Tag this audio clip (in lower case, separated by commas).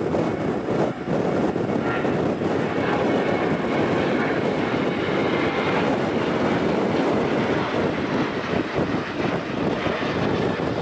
airplane flyby